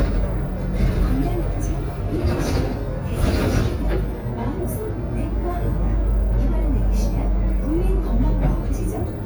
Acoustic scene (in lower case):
bus